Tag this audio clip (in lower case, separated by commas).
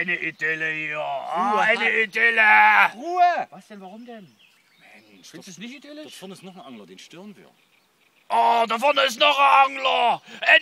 speech